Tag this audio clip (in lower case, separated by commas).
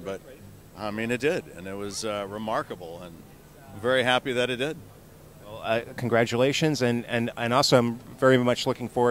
speech